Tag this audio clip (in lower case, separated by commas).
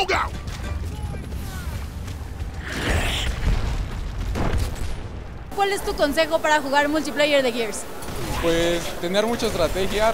speech